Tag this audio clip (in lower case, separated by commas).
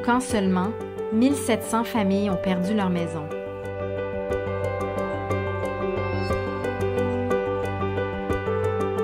music, speech